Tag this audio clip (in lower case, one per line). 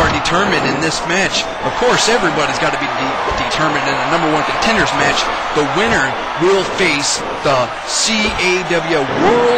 speech